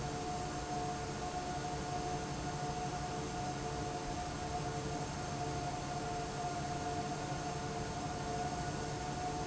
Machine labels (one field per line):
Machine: fan